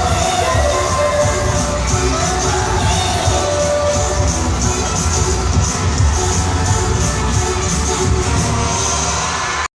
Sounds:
pop music, music

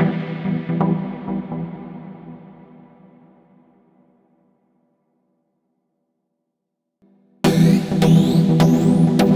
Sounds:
electronic music, house music, music

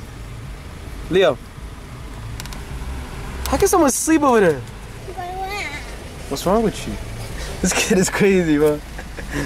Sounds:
speech, outside, urban or man-made

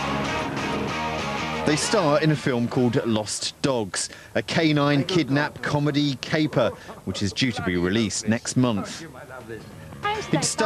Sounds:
music, speech

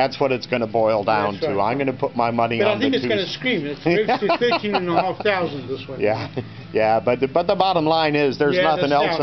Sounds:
music, speech

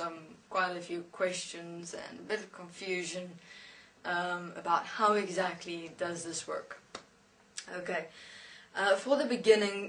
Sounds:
speech

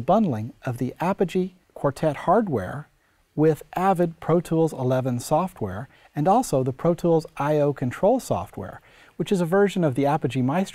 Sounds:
speech

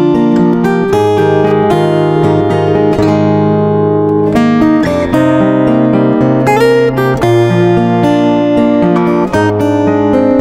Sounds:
plucked string instrument, music, strum, musical instrument, guitar

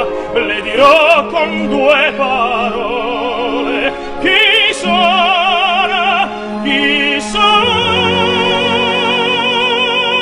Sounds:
music

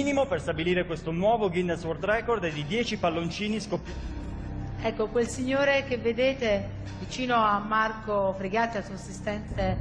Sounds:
speech

